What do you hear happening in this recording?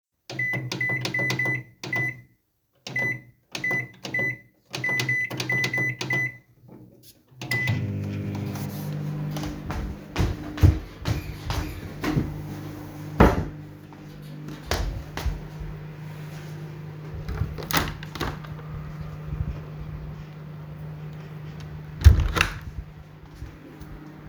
I started the microwave, jumped on one foot towards the window, moved a chair away and opened the window